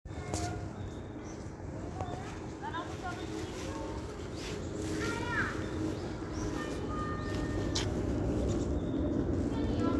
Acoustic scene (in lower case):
park